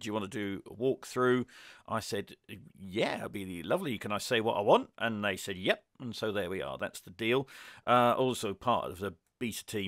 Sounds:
Speech

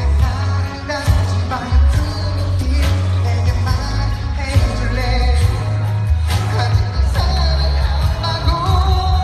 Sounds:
Music, Male singing

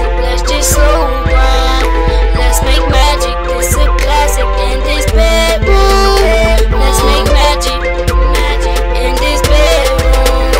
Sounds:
Music, Funk

